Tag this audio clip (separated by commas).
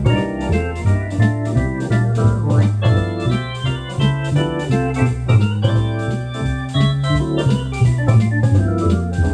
playing hammond organ